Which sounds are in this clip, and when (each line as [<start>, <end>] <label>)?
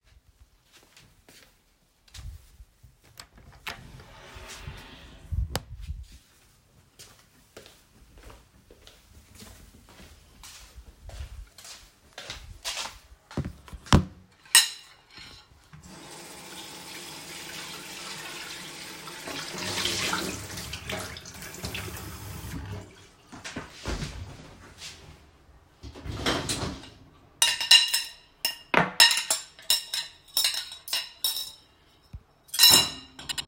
[0.72, 4.02] footsteps
[3.66, 6.35] door
[6.79, 13.70] footsteps
[14.26, 15.58] cutlery and dishes
[15.95, 23.36] running water
[26.83, 27.12] cutlery and dishes
[27.18, 33.12] cutlery and dishes